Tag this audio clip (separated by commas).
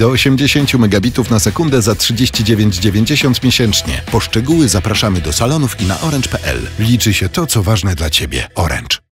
Music, Speech